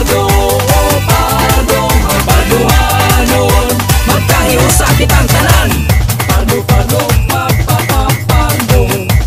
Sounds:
music, jingle (music)

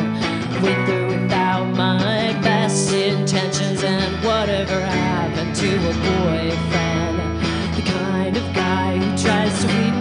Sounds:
music

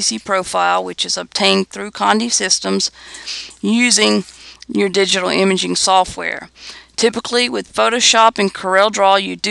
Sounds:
speech

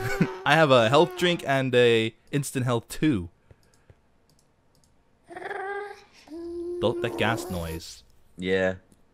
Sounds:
speech

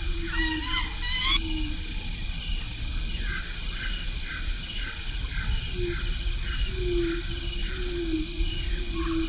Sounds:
animal, outside, rural or natural

